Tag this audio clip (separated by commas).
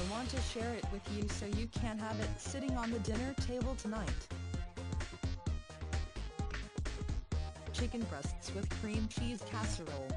Music, Speech